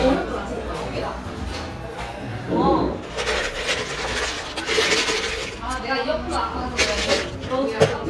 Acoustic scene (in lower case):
cafe